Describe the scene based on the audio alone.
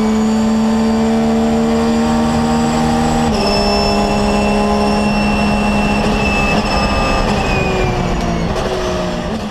Race car accelerating and leveling off